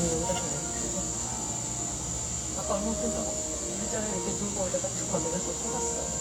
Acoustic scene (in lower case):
cafe